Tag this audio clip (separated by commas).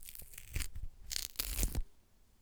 Tearing